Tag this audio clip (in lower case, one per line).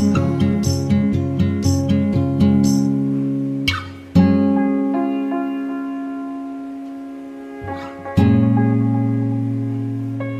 music